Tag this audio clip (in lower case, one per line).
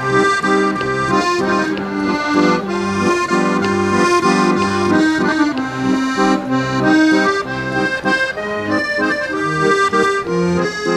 music